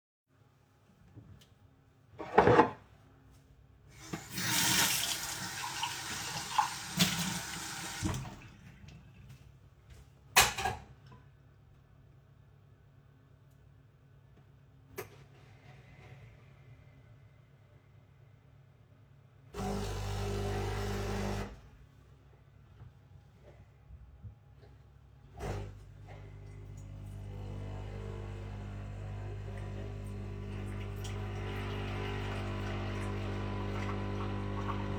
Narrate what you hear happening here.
I took a mug from my drawer, washed it with water and than made myself a coffee.